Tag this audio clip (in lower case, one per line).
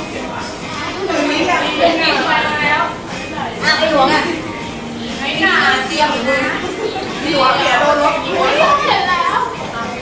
speech
music